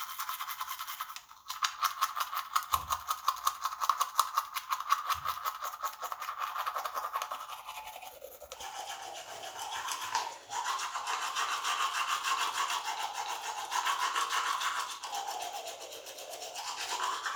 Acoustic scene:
restroom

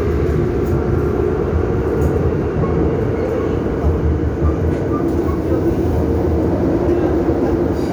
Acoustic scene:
subway train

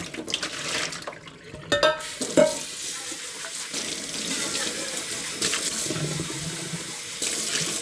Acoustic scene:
kitchen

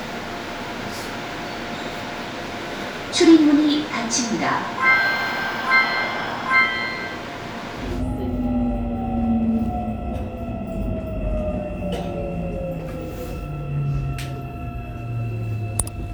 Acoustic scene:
subway train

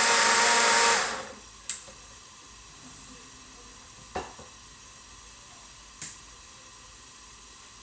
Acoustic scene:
kitchen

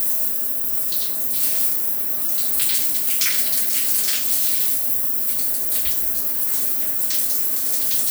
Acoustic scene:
restroom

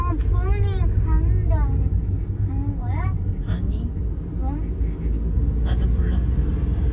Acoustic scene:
car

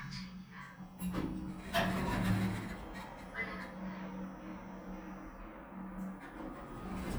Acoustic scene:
elevator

